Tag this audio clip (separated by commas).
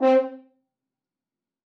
Brass instrument, Music, Musical instrument